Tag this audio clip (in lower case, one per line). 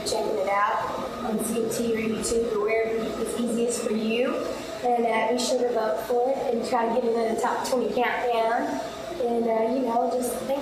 speech